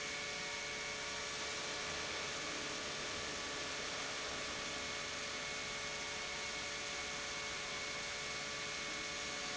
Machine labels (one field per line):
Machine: pump